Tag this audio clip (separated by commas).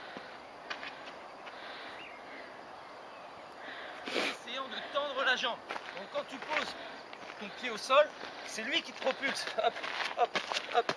Speech, outside, rural or natural